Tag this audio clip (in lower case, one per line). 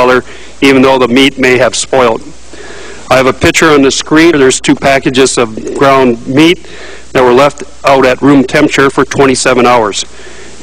speech